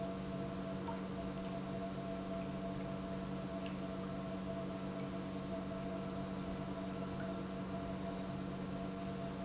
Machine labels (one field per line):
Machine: pump